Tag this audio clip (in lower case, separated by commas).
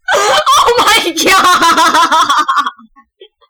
laughter, human voice